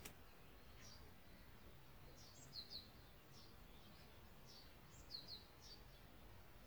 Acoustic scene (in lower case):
park